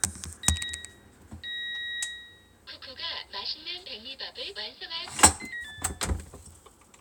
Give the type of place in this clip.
kitchen